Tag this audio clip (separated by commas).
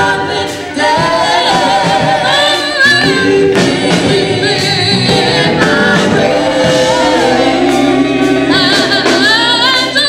Singing, Music, Gospel music, Choir